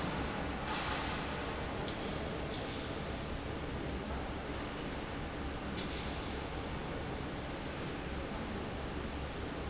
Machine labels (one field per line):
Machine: fan